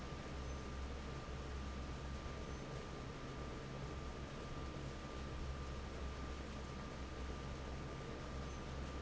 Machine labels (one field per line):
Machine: fan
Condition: normal